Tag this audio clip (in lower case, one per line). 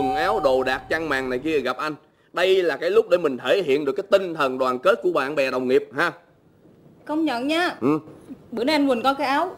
speech